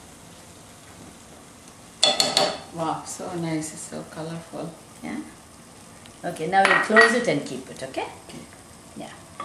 Two women talking and pots and pans clanging